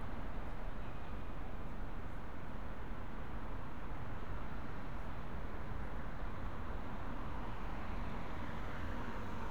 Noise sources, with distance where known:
medium-sounding engine, far

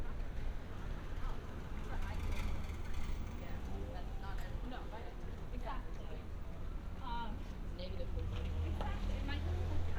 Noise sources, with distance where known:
person or small group talking, near

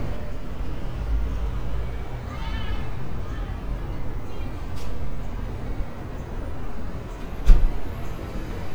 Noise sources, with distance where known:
unidentified human voice

